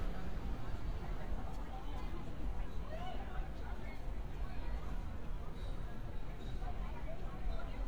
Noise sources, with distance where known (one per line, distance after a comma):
person or small group talking, far